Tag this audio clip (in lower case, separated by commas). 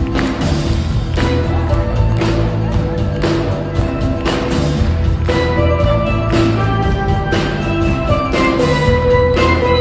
music, applause